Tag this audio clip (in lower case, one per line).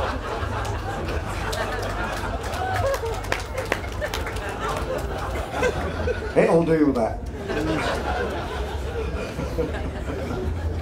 speech